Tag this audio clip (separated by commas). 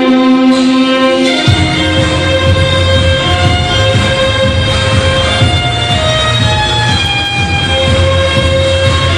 Violin, Bowed string instrument